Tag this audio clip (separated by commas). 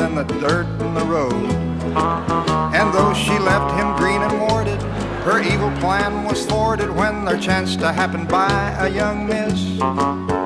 Speech, Music